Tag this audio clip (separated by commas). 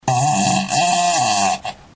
Fart